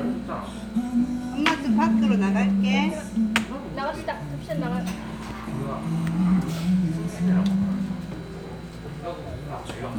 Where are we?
in a crowded indoor space